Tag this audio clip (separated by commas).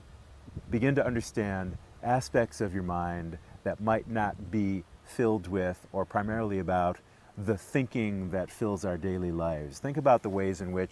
Speech